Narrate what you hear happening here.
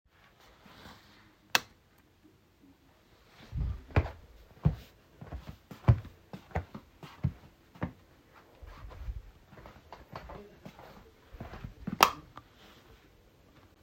Light switch turned on and off while a person walks.